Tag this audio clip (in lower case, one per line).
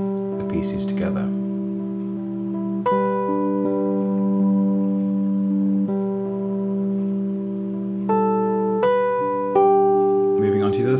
inside a small room
speech
music